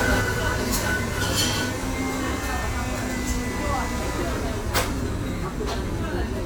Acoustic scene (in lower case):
cafe